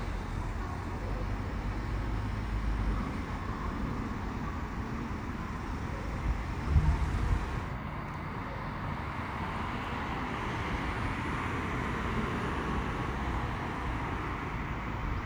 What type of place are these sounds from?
street